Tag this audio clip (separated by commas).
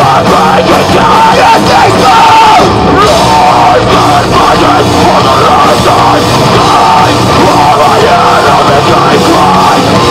Music